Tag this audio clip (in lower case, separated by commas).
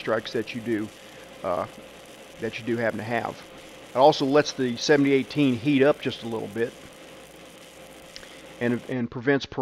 arc welding